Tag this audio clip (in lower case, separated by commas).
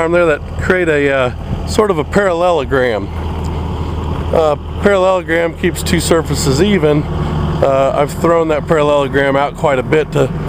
speech